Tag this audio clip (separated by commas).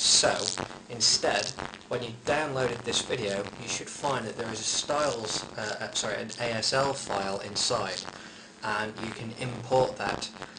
Speech